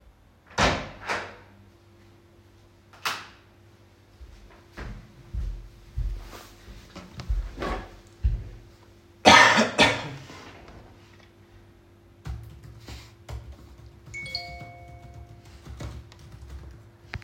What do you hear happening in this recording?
I opened a door, switched the light on, went to the table, coughed, started typing and received notification